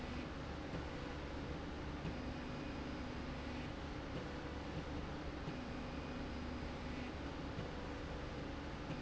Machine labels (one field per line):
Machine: slide rail